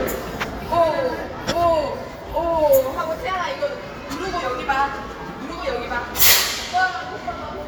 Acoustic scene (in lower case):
crowded indoor space